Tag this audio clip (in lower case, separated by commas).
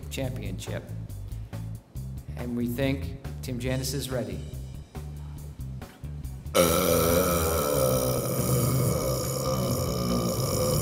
people burping